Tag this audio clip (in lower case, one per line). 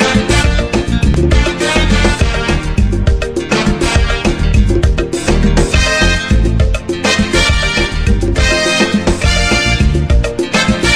music